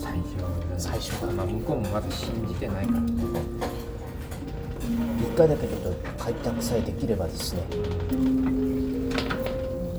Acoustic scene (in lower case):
restaurant